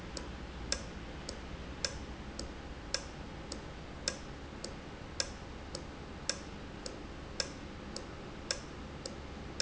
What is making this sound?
valve